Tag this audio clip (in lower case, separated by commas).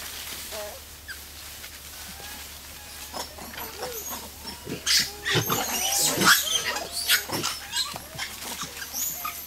animal, wild animals